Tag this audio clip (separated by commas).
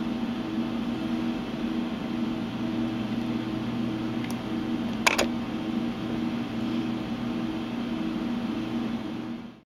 Music